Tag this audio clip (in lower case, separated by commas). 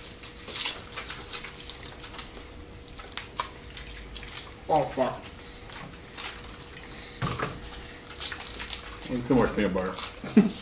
speech